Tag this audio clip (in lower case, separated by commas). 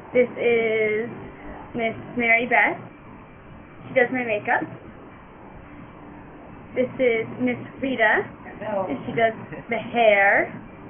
speech